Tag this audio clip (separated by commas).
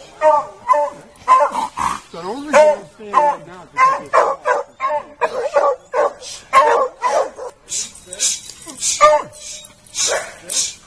dog baying